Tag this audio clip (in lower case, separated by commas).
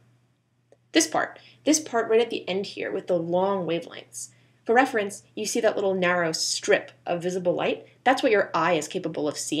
speech